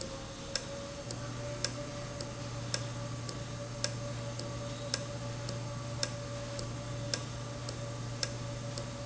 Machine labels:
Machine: valve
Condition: normal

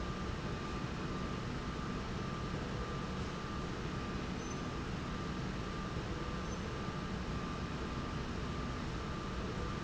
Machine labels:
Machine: slide rail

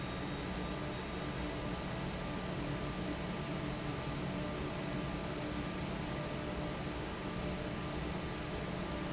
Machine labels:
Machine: fan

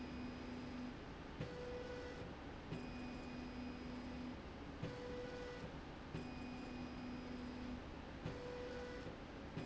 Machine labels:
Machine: slide rail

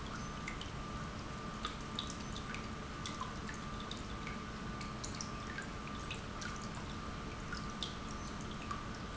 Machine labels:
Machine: pump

